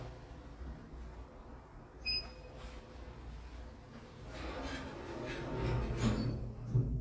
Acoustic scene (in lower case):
elevator